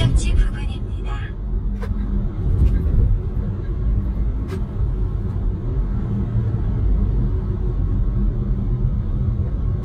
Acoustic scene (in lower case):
car